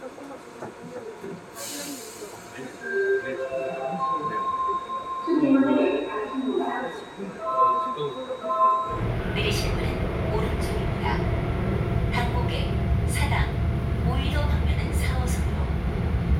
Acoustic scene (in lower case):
subway train